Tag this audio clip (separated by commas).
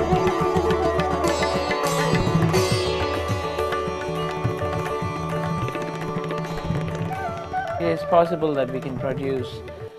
Speech, Classical music, Music, Carnatic music, Sitar